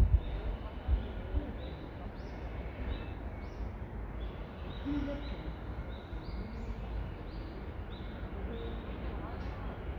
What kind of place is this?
residential area